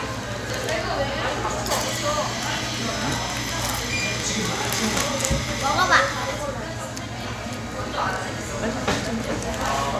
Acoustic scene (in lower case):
cafe